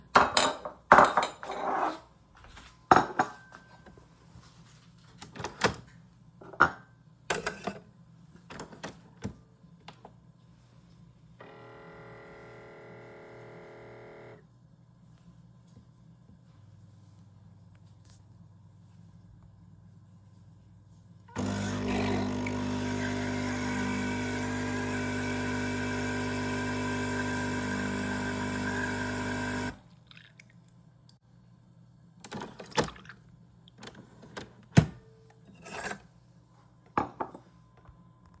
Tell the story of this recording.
i placed the cup under the coffee machine and pressed the button to start brewing. The coffee machine started brewing and finished making the coffee. after that i turned off the machine and took my cup from the coffee machine.